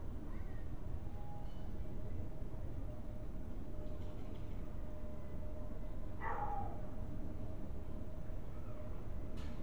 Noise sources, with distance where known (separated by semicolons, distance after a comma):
dog barking or whining, far